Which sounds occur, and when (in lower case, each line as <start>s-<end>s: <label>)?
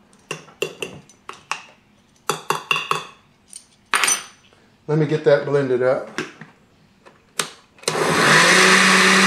0.0s-9.2s: background noise
0.3s-0.5s: dishes, pots and pans
0.6s-1.1s: dishes, pots and pans
1.2s-1.8s: dishes, pots and pans
2.2s-3.1s: dishes, pots and pans
3.4s-3.7s: dishes, pots and pans
3.9s-4.3s: dishes, pots and pans
4.8s-6.3s: male speech
6.1s-6.5s: generic impact sounds
7.3s-7.5s: generic impact sounds
7.9s-9.2s: blender